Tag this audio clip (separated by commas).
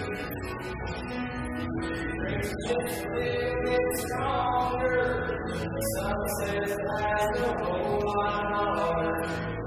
Music